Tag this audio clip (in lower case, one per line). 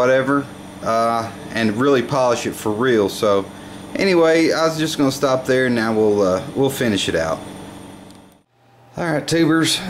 idling
speech
vehicle
engine